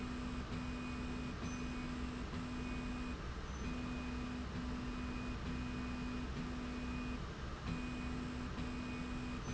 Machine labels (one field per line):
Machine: slide rail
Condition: normal